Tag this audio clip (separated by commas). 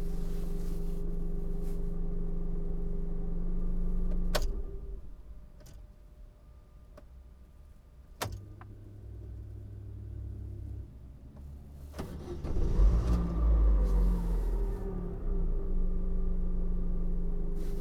Engine starting, Vehicle, Motor vehicle (road), Engine, Idling